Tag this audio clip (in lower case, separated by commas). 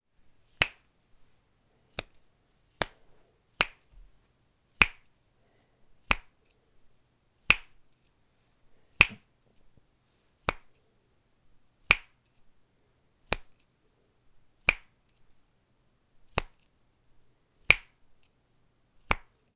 hands